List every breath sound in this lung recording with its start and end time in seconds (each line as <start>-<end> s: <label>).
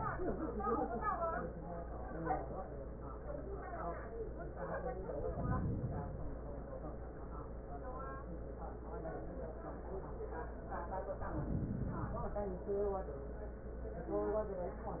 5.05-6.44 s: inhalation
11.12-12.51 s: inhalation